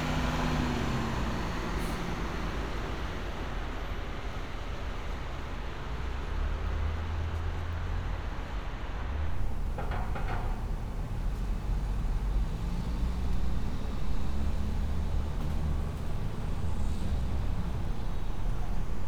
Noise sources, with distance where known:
large-sounding engine, near

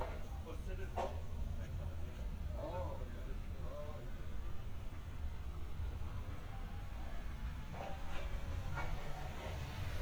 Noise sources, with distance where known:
person or small group talking, near

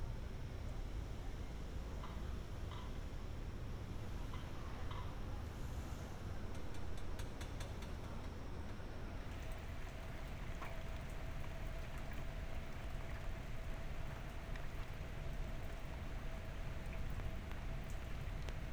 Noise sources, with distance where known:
background noise

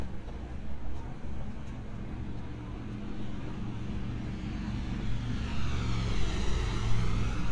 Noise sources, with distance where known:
engine of unclear size

